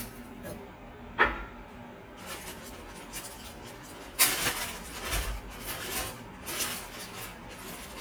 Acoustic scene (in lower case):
kitchen